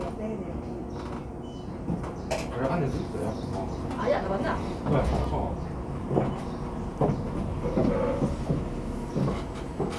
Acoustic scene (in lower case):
cafe